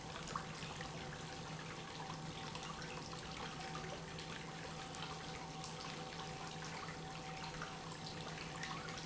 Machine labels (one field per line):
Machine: pump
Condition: normal